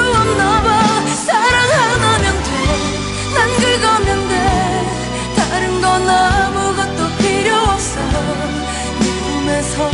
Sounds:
Music, Pop music

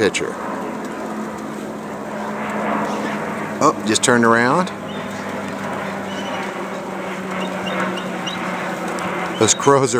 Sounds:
Speech

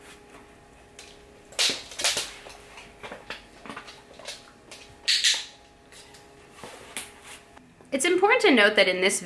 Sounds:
opening or closing drawers

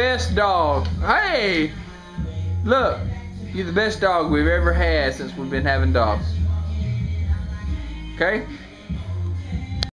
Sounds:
Music, Speech

